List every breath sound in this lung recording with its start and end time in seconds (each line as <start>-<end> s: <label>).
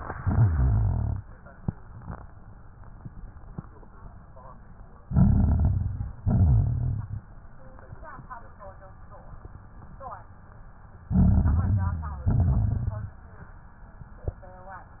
0.13-1.22 s: exhalation
0.13-1.22 s: rhonchi
5.05-6.13 s: inhalation
5.05-6.13 s: crackles
6.20-7.29 s: exhalation
6.20-7.29 s: rhonchi
11.14-12.22 s: inhalation
11.14-12.22 s: crackles
12.28-13.36 s: exhalation
12.28-13.36 s: rhonchi